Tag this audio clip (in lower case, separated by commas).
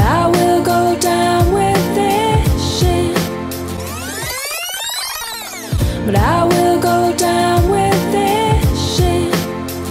music